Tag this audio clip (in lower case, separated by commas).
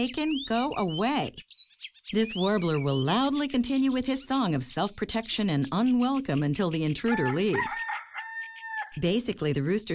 bird, speech, tweet